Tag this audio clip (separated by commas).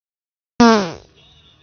Fart